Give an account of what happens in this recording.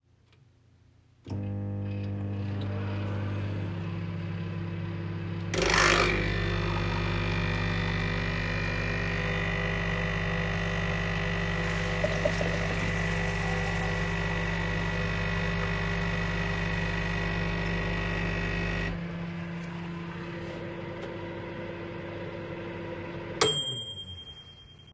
I am starting the microwave; then I make myself coffee and fill a glass with water; microwave is running the entire time until the ring sound.